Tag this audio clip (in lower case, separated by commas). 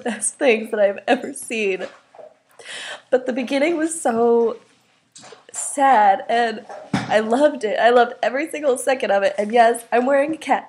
speech